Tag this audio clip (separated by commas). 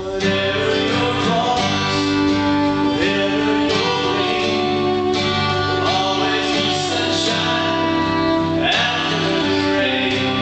Music